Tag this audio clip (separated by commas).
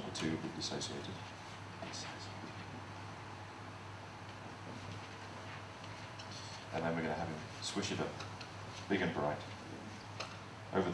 Speech